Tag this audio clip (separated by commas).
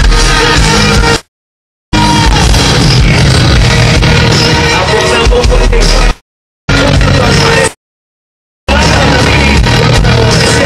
Rock music, Music